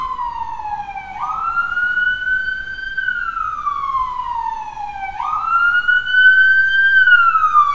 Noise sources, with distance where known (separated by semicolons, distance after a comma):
siren, near